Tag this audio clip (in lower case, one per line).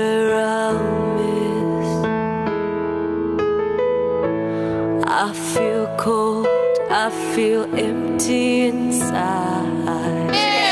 music